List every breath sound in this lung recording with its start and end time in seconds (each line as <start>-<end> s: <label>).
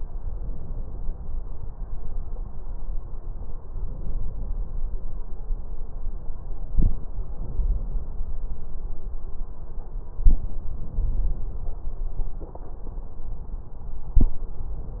3.68-4.83 s: inhalation
7.31-8.41 s: inhalation
10.70-11.88 s: inhalation